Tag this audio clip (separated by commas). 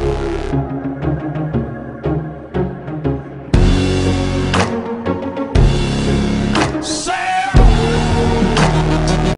Music